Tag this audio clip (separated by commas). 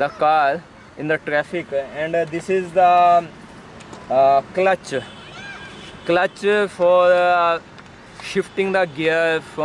Speech